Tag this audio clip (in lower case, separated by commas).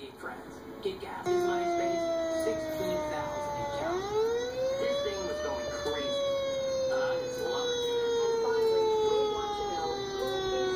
speech